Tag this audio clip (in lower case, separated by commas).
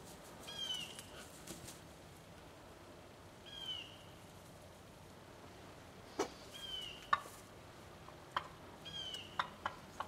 fowl